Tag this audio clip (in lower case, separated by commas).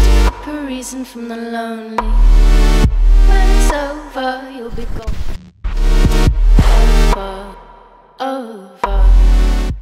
music